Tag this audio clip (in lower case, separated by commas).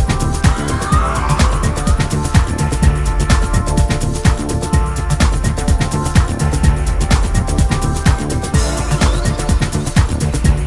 music